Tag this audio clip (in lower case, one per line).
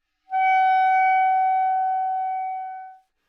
woodwind instrument
music
musical instrument